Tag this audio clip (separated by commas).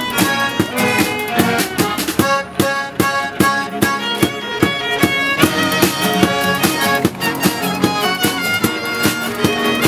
Music, Tap